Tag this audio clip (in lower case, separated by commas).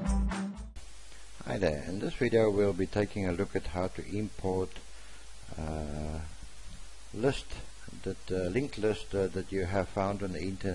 speech, music